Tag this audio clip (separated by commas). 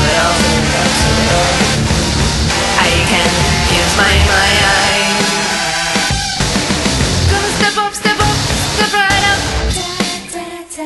Music